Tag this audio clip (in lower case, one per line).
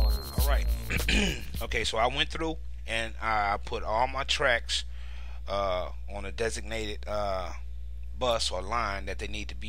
music
speech